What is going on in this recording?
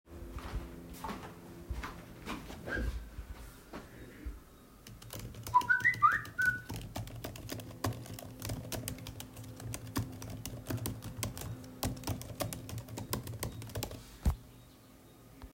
I walked with the device toward the desk, so footsteps were audible. Then I started typing on the keyboard. While typing, a phone notification or ringing sound occurred and overlapped with the keyboard sound. The overlap lasted for a few seconds.